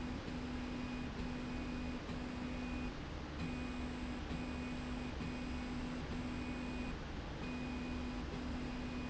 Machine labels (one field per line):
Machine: slide rail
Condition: normal